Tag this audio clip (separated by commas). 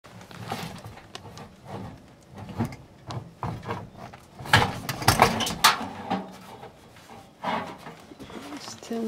Speech